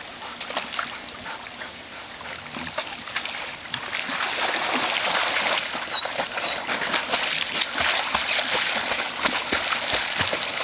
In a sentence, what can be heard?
Animal splashing around and playing in water. Birds chirp in the background